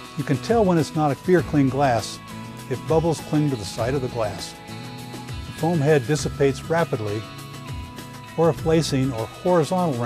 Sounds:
Music, Speech

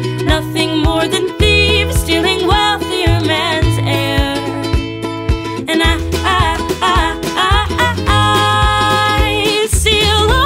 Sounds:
Happy music, Music

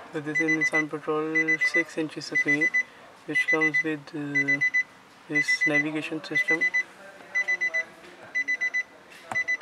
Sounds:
Speech

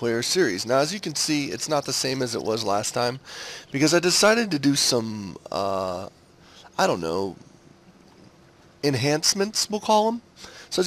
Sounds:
Speech

